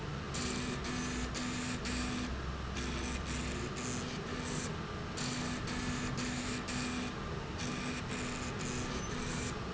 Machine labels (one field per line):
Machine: slide rail